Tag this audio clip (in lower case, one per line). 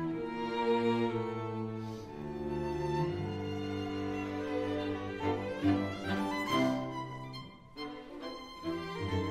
musical instrument
music
fiddle